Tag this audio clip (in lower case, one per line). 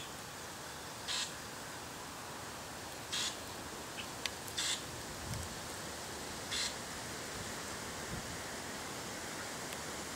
animal